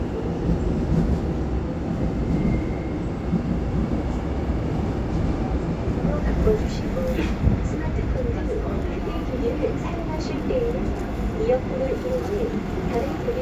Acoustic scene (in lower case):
subway train